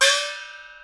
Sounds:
percussion
music
gong
musical instrument

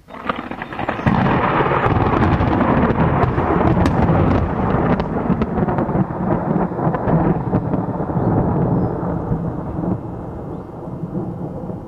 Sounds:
thunderstorm
thunder

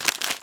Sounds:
crinkling

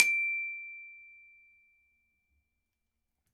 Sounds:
glockenspiel
musical instrument
mallet percussion
percussion
music

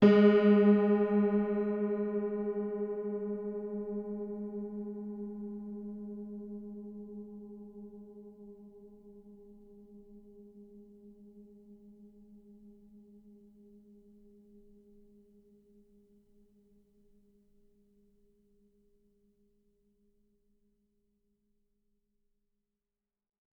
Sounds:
keyboard (musical)
piano
music
musical instrument

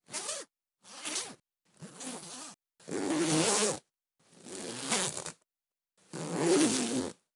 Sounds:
zipper (clothing)
domestic sounds

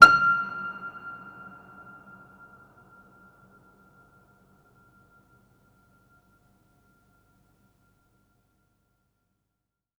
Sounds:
musical instrument
keyboard (musical)
piano
music

